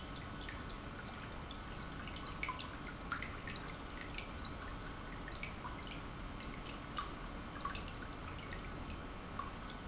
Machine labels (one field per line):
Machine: pump